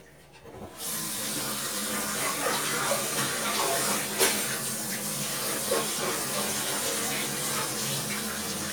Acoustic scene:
kitchen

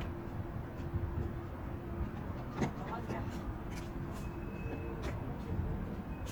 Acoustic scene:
residential area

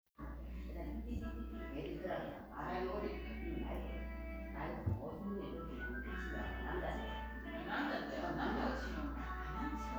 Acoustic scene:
crowded indoor space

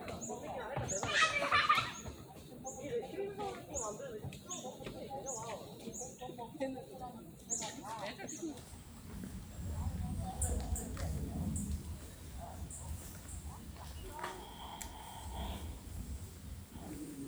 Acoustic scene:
park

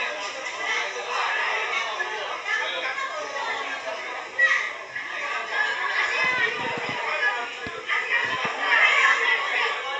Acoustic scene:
crowded indoor space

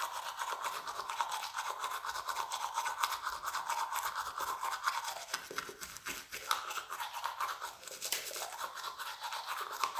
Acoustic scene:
restroom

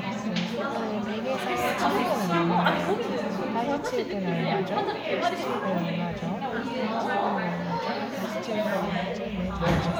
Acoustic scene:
crowded indoor space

